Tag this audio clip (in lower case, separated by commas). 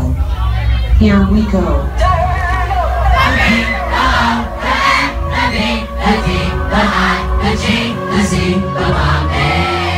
crowd, singing, music